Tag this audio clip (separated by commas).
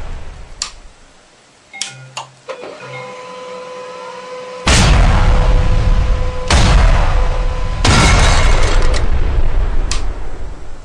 Printer